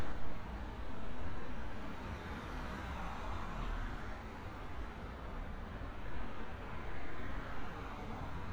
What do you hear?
medium-sounding engine